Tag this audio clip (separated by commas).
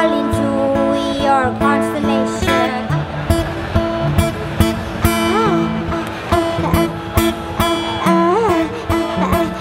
Music, Folk music